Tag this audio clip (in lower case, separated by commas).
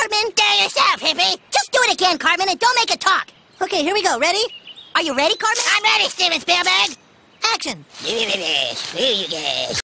animal, speech